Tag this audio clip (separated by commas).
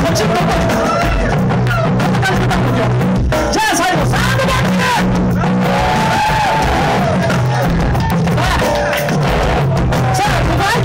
Exciting music, Music